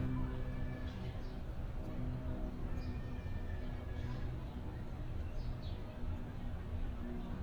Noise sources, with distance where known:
person or small group talking, far

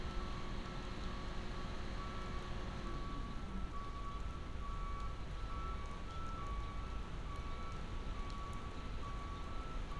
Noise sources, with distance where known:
background noise

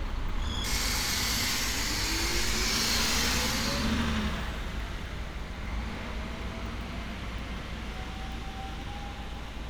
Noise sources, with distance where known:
large-sounding engine, near

